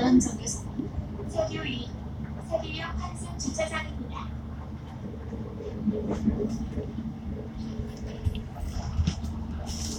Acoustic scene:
bus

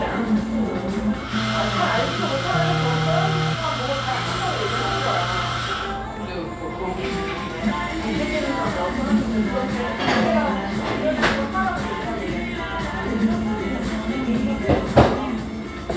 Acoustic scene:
cafe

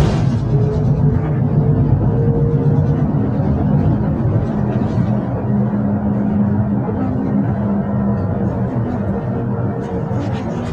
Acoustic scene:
bus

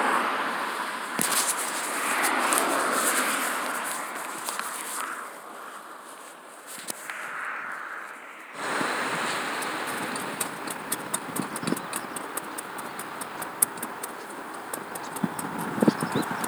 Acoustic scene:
street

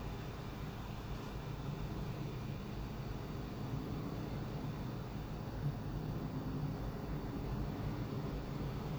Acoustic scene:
street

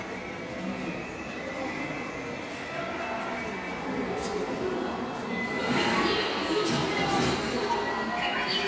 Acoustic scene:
subway station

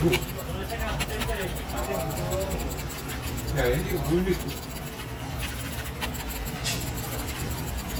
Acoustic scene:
crowded indoor space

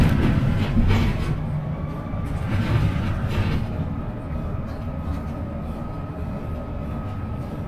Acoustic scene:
bus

